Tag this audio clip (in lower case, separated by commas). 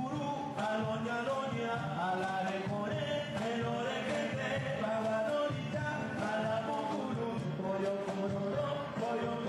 blues, music